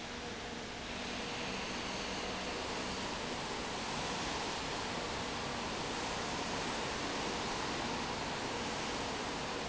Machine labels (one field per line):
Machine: fan